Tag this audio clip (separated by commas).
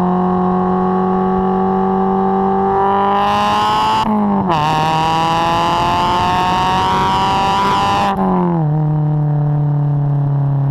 Clatter